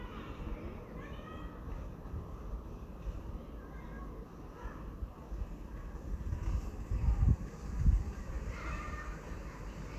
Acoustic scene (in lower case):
residential area